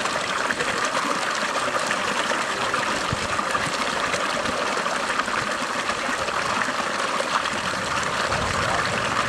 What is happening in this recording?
Water is flowing